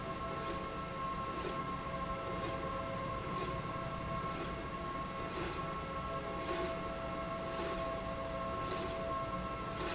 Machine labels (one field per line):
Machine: slide rail